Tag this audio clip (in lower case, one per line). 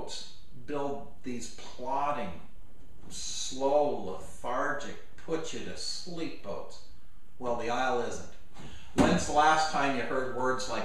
speech